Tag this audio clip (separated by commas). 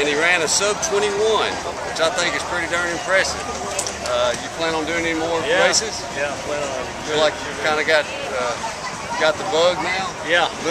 outside, urban or man-made, Speech